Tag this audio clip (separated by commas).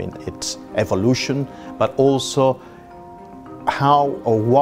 Music, Speech